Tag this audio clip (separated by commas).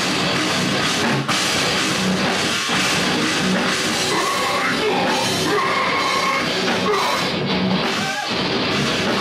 Music, Rock music, Pulse, Heavy metal